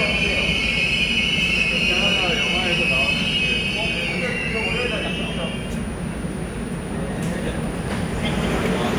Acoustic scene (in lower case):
subway station